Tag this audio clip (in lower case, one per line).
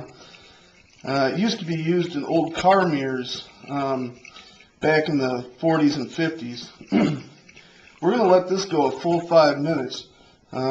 speech